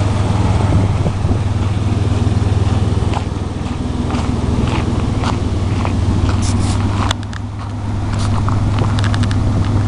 Wind is blowing and a car engine is idling then footsteps